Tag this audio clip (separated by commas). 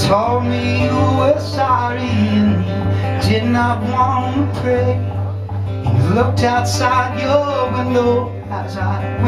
Music